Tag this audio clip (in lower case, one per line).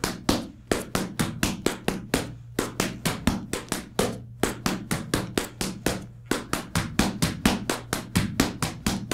tap dancing